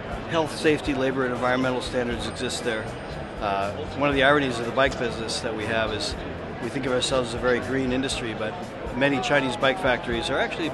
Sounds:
Music, Speech

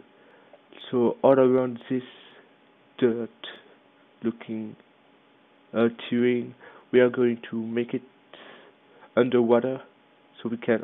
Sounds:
Speech

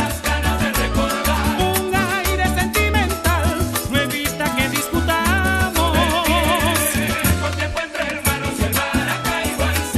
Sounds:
Salsa music, Music

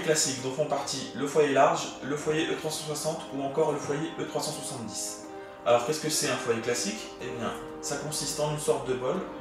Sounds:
Music, Speech

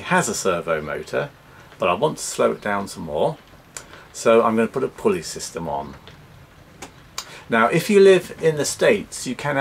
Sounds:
Speech

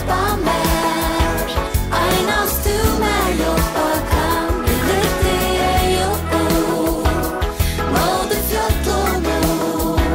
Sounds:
Music, Gospel music

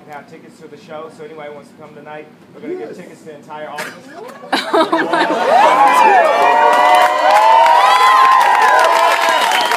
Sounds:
Crowd, Cheering

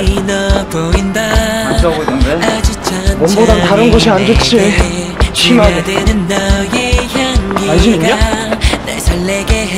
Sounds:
Speech, Music

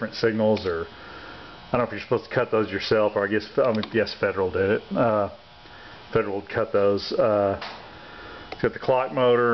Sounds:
Speech

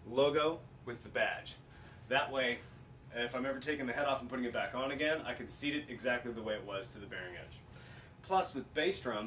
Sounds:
Speech

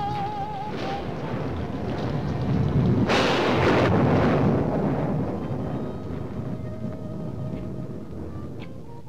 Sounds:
Music

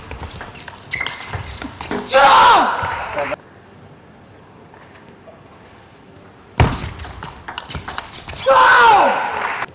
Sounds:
Male speech

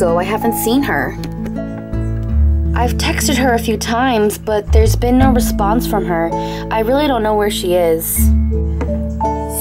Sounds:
Speech, Music

